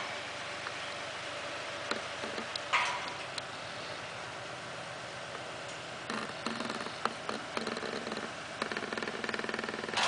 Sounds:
clip-clop

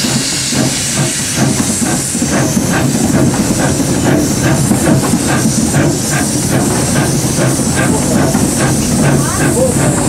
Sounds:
hiss
steam

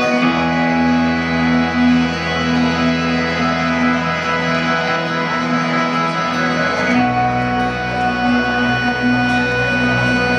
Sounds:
music

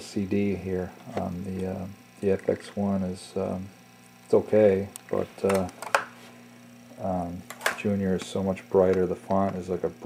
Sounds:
speech

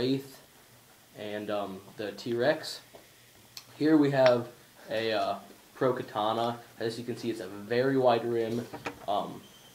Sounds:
speech
inside a small room

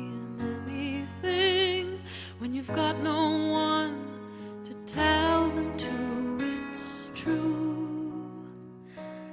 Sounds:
female singing
music

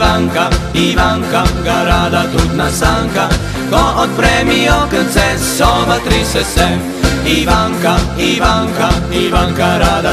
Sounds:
music

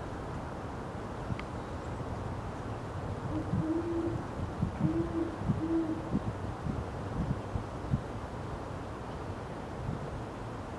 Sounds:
owl hooting

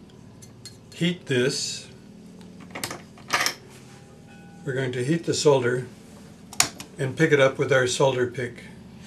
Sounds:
speech
inside a small room

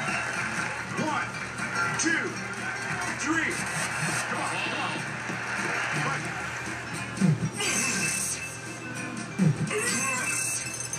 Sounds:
speech
music

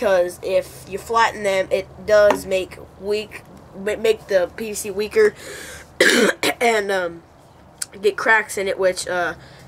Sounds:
speech

